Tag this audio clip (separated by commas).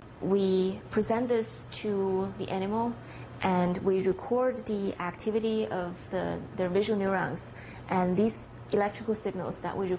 Speech